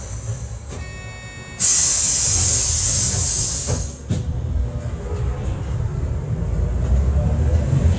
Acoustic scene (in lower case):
bus